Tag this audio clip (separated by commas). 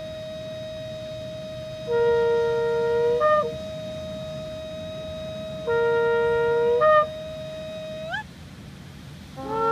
Shofar, woodwind instrument